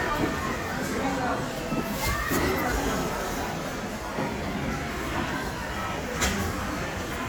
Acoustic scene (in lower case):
crowded indoor space